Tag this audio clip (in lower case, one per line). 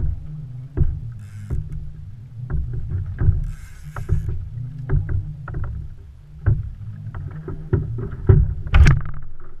wind
water vehicle
rowboat